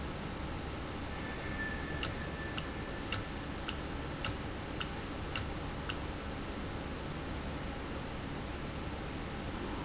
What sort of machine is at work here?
valve